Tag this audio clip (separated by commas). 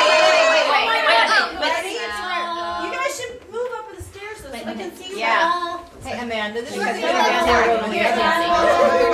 Speech